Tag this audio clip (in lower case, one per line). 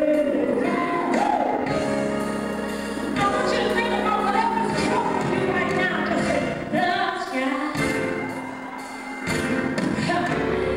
music